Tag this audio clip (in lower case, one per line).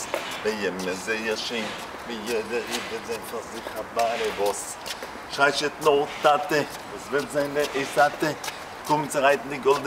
male singing